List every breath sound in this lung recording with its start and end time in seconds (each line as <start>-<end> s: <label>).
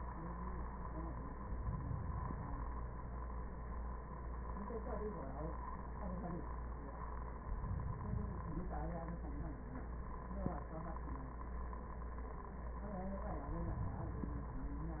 1.50-2.56 s: inhalation
7.51-8.58 s: inhalation
13.36-14.52 s: inhalation